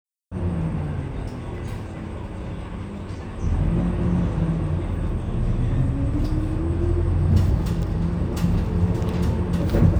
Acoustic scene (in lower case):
bus